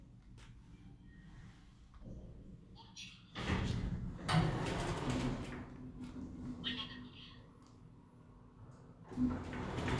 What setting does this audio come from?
elevator